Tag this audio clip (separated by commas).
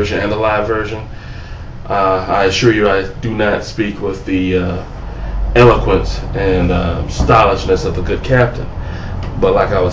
Speech